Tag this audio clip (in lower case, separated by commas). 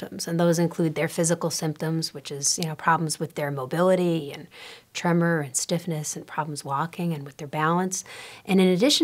speech